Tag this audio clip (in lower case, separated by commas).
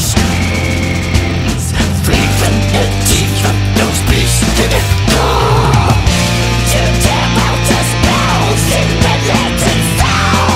music, angry music